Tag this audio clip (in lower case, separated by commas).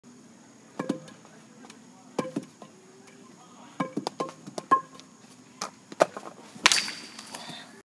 outside, rural or natural, speech